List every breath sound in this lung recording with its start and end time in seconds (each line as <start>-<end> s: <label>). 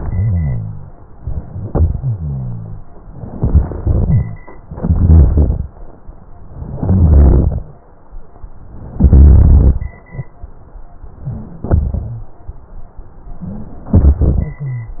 0.00-0.93 s: rhonchi
1.94-2.75 s: exhalation
1.94-2.75 s: rhonchi
3.38-4.38 s: crackles
3.40-4.35 s: inhalation
4.69-5.69 s: crackles
4.71-5.69 s: inhalation
6.66-7.67 s: crackles
6.68-7.67 s: inhalation
8.99-9.98 s: inhalation
9.03-9.89 s: crackles
11.27-12.26 s: inhalation
11.63-12.49 s: crackles
13.39-13.68 s: wheeze
14.57-15.00 s: wheeze